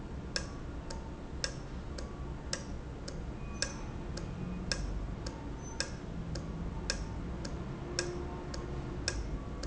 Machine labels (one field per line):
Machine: valve